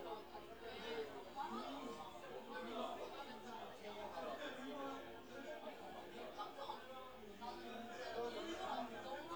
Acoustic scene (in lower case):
crowded indoor space